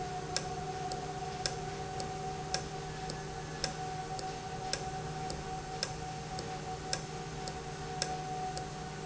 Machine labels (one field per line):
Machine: valve